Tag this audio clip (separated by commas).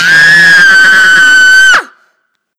Screaming, Human voice